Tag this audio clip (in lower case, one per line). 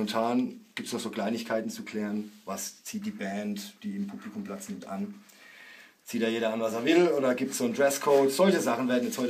speech